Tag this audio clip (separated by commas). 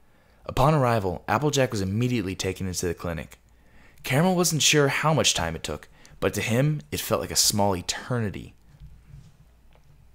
Speech, monologue